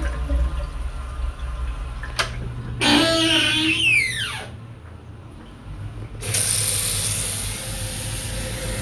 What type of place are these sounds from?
restroom